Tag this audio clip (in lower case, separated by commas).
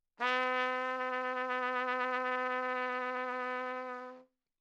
music, brass instrument, musical instrument, trumpet